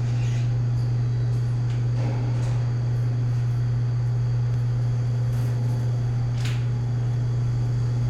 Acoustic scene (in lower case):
elevator